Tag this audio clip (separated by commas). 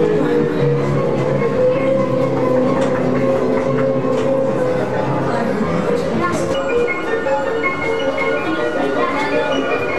Speech, Music